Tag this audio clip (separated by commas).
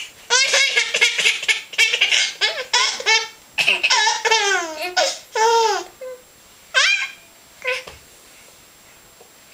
Laughter